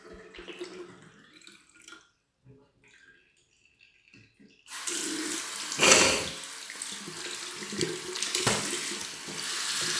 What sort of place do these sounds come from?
restroom